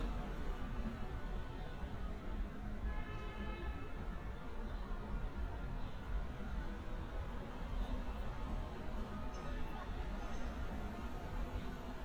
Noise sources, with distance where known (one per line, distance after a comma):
car horn, far